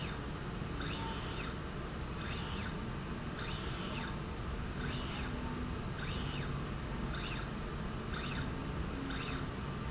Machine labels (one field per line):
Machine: slide rail